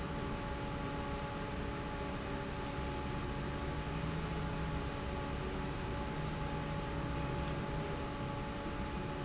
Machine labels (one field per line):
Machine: fan